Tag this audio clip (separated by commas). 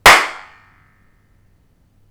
Hands, Clapping